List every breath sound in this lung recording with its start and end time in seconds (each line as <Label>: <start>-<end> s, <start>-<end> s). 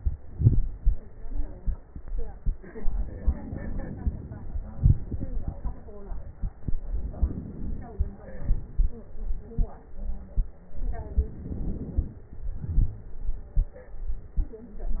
Inhalation: 2.74-4.54 s, 6.84-8.02 s, 10.73-12.23 s
Exhalation: 0.24-0.96 s, 4.57-5.97 s, 8.02-9.05 s, 12.24-13.20 s
Crackles: 0.24-0.96 s, 4.57-5.97 s, 10.73-12.23 s